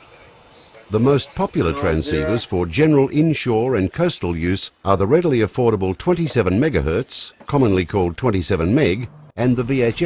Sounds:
Speech

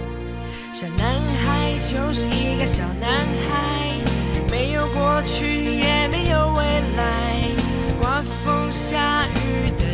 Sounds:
Music

